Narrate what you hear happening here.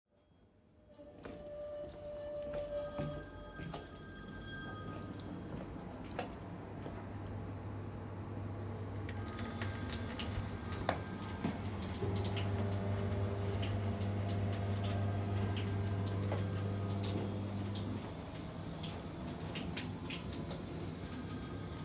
I entered the kitchen and turned on the microwave and tap while a phone was ringing